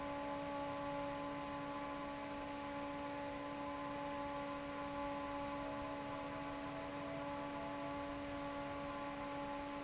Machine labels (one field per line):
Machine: fan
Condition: normal